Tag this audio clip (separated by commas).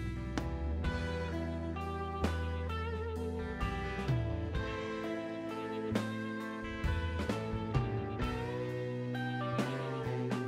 Music